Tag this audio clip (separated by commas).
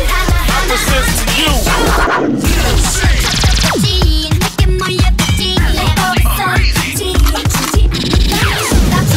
Music